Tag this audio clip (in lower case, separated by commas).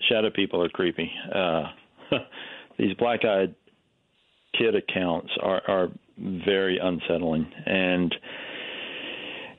speech